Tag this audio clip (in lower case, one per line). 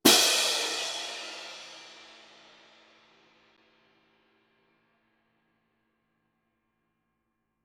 percussion
musical instrument
music
crash cymbal
cymbal